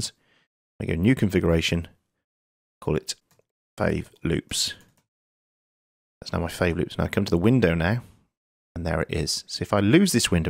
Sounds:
Speech

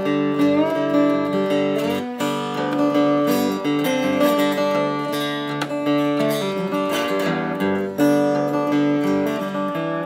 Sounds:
slide guitar

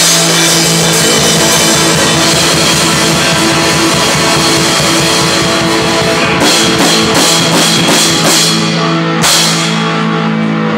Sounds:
Music, Heavy metal

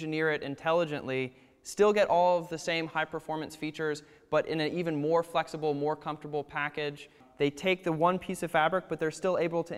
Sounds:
Speech

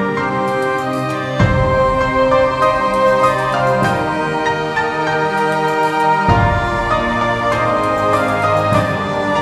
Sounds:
Music, New-age music

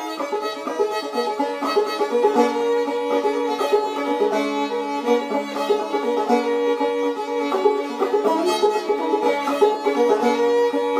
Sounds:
Musical instrument, Music, fiddle

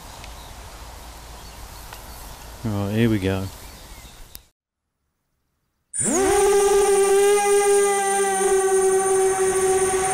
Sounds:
Insect

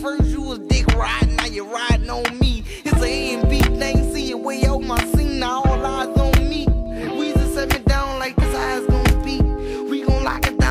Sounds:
Music, Guitar, Musical instrument

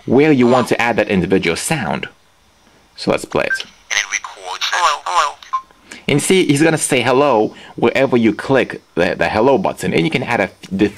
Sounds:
Telephone, inside a small room, Speech

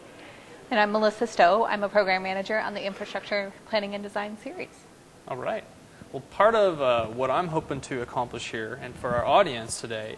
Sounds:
Speech

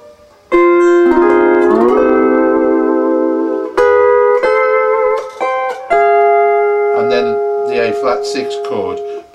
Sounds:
Electronic organ, Speech, Music

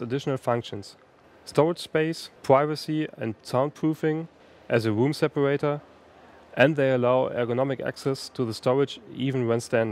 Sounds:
Speech

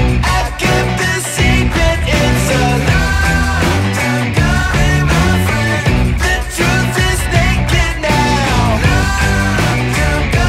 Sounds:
Music

